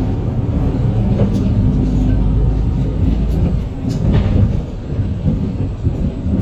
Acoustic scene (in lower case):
bus